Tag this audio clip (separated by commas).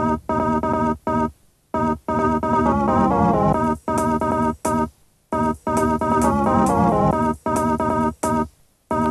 Music